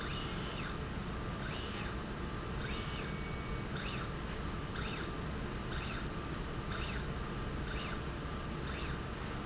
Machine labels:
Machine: slide rail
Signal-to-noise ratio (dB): -6 dB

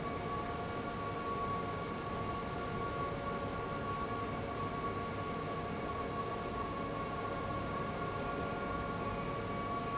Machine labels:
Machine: fan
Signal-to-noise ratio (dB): -6 dB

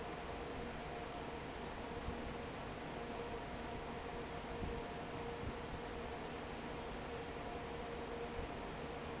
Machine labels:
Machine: fan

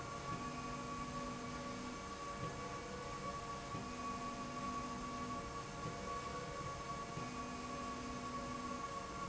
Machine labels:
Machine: slide rail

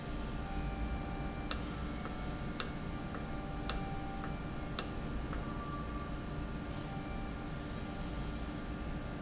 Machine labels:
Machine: valve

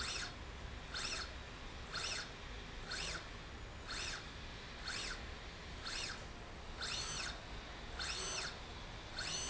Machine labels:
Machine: slide rail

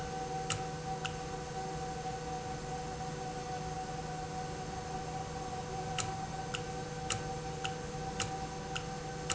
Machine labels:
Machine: valve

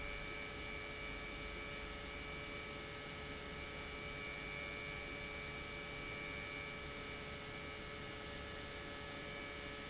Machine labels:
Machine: pump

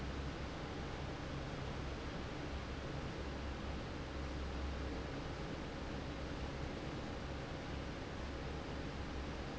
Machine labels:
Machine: fan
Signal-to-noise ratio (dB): 0 dB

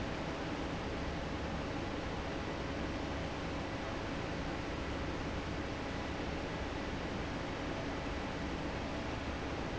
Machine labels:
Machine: fan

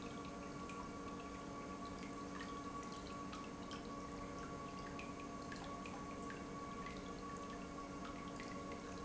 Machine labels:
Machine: pump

